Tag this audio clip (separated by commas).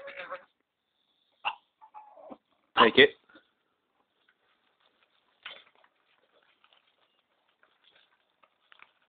Speech